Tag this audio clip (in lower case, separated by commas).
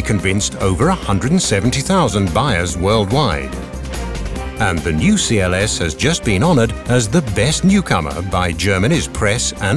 speech, music